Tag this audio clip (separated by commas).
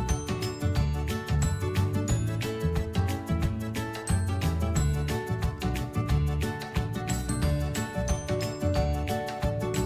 Music